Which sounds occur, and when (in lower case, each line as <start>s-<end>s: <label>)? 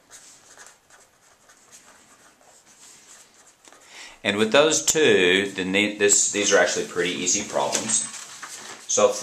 0.0s-6.1s: writing
3.7s-4.2s: breathing
4.2s-8.0s: male speech
7.6s-7.9s: generic impact sounds
8.0s-8.8s: generic impact sounds